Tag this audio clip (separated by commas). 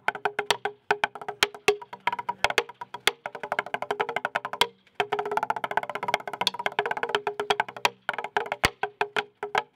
Music, Wood block